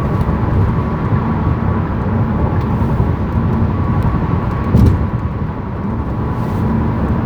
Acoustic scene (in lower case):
car